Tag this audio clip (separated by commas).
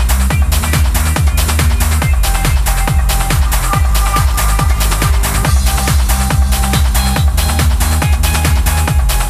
Trance music